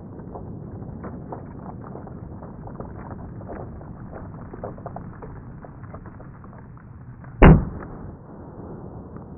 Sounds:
pop

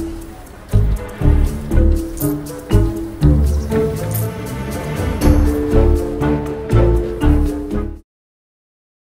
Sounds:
Music

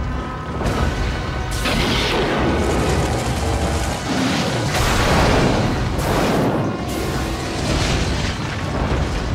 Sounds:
Music

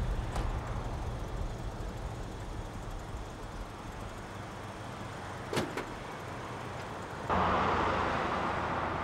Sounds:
elk bugling

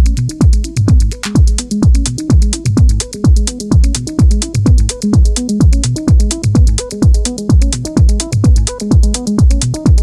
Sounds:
Music

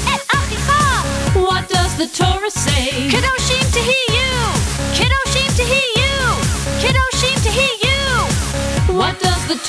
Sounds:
Music for children

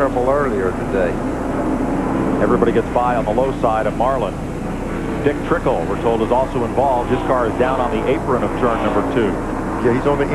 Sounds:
Speech

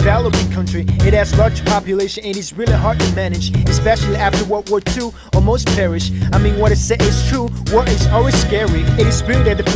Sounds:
Music

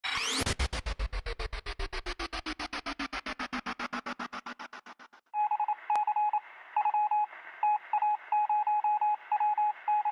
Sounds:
Music

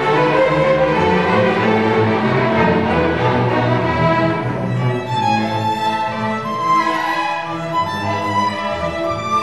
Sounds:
Musical instrument, fiddle, Violin, Music

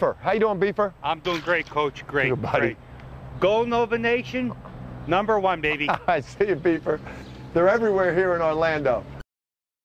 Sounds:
Speech

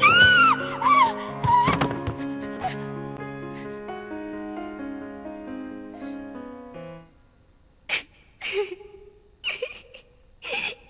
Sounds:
Music

